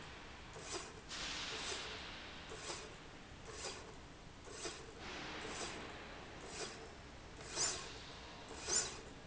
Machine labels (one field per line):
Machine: slide rail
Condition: normal